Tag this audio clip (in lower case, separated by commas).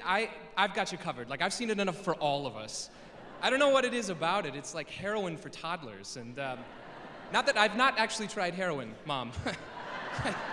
speech